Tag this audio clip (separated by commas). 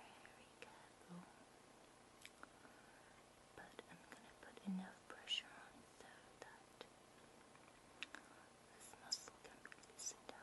Speech, mastication, inside a small room